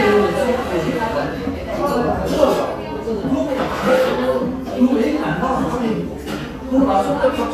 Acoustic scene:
cafe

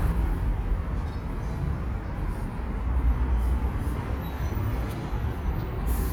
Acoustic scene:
residential area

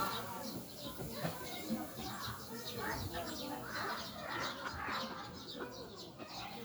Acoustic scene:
residential area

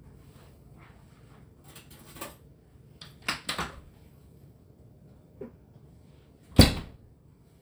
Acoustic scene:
kitchen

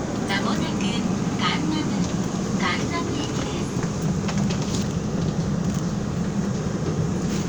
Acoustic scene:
subway train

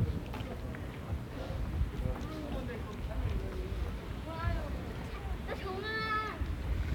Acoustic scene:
residential area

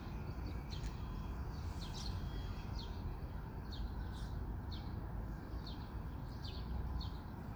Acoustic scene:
park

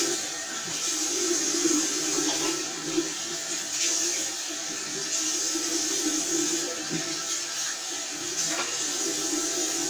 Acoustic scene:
restroom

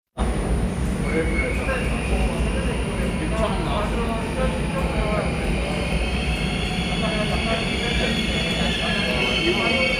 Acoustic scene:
subway station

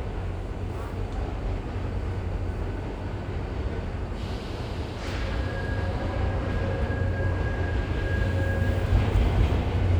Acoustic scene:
subway station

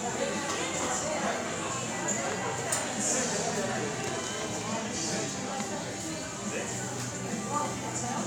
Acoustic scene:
cafe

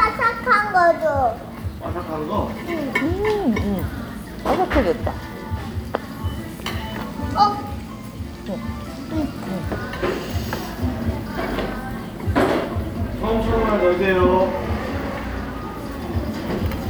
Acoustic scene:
restaurant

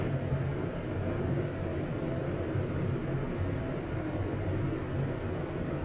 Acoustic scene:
elevator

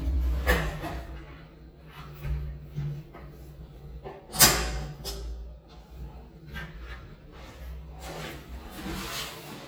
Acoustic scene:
restroom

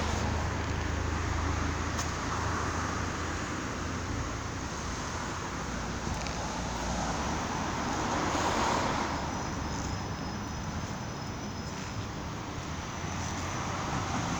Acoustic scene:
street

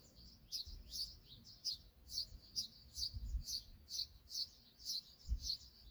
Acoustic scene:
park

